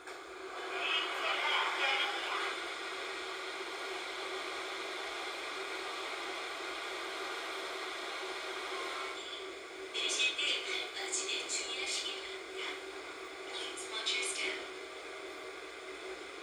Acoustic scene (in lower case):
subway train